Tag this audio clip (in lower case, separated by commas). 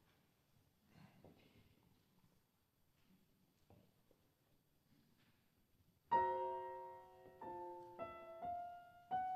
music